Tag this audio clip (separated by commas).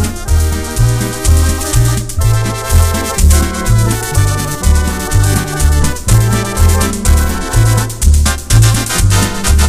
playing electronic organ